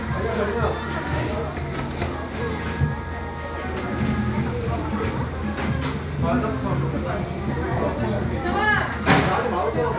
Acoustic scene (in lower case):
cafe